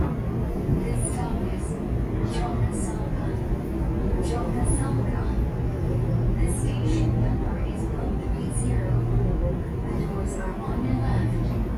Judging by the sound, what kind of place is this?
subway train